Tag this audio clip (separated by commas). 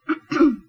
Respiratory sounds, Cough